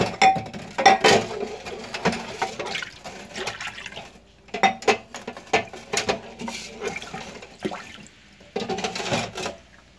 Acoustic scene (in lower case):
kitchen